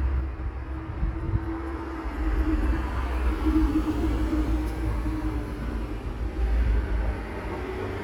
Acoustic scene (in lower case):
street